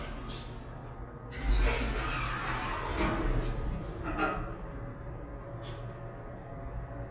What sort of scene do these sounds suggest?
elevator